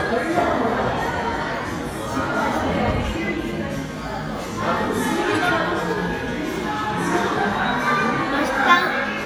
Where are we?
in a crowded indoor space